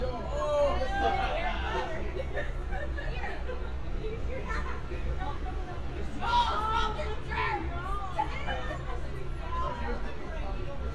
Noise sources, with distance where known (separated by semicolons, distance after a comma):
person or small group shouting, near